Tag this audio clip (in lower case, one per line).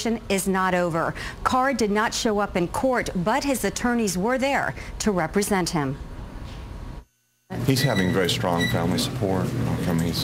speech